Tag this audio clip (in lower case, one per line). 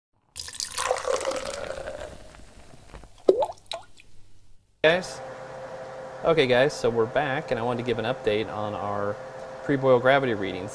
speech